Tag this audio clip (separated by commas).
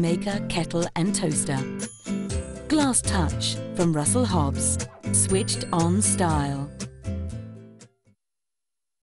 Music, Speech